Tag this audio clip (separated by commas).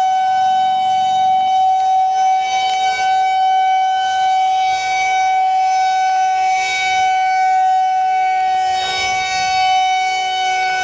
Siren, Civil defense siren